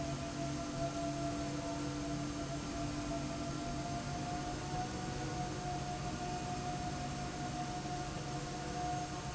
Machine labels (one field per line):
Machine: slide rail